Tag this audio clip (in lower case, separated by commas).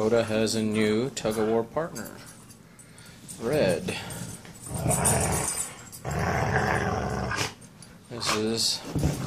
speech, pets, roar, dog, inside a small room, animal